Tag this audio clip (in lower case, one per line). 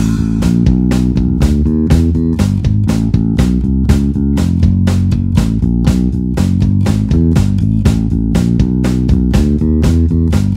music